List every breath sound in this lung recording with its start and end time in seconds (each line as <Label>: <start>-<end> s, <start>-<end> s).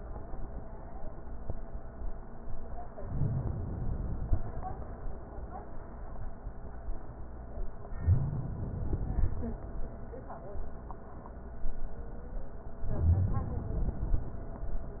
Inhalation: 3.02-4.81 s, 7.95-9.74 s, 12.85-14.64 s